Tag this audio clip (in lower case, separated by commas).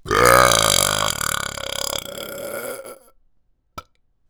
burping